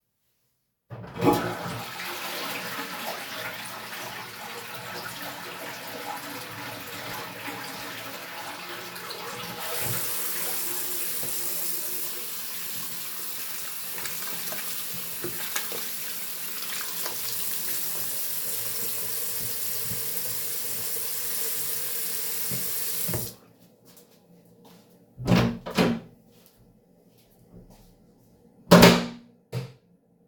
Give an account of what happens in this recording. I flushed the toilet and went to the sink to wash hands. Then I dried them with a towel and went to the door, I opened the door, walked out, closed the door and turned the light off.